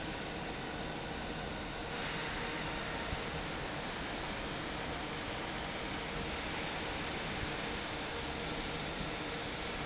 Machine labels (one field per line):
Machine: fan